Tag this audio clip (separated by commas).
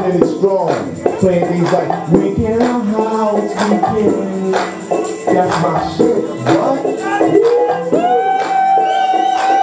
Music, Speech